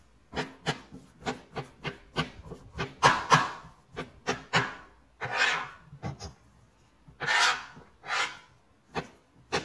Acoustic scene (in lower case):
kitchen